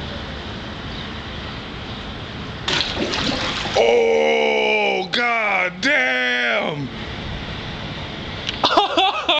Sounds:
Speech

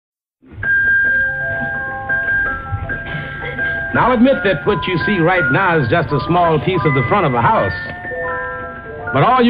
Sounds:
Speech, Music

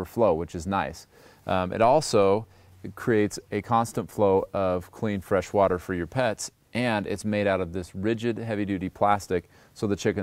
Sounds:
Speech

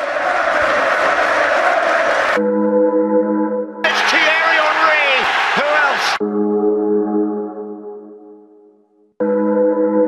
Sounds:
Music, Speech

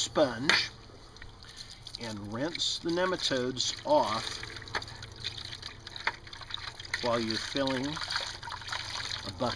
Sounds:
Liquid, Speech

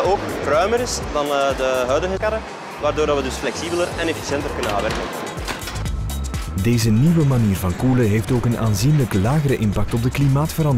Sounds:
Music, Speech

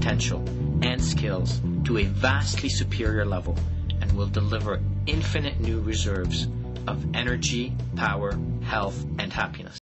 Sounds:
Music, Speech

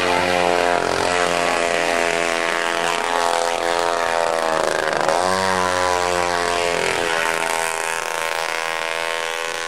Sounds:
Vehicle, speedboat

